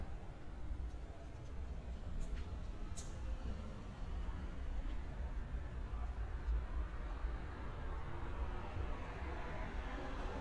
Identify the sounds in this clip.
engine of unclear size